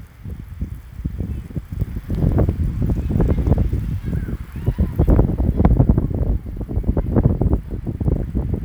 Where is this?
in a residential area